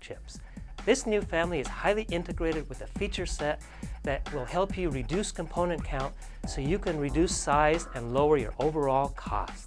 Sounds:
Music, Speech

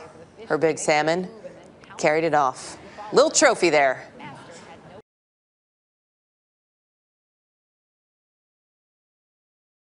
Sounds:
Speech

